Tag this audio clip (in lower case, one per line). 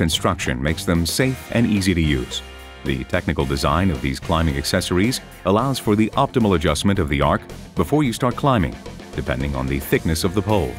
music
speech